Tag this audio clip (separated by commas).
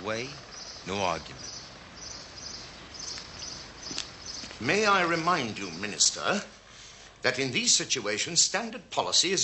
Speech, Environmental noise, bird call